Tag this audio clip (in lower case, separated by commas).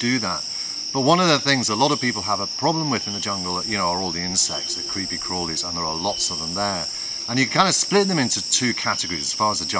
speech